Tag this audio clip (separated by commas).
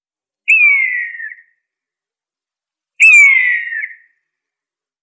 Wild animals, Animal, Bird